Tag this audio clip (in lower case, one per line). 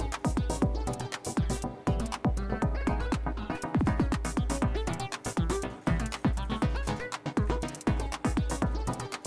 music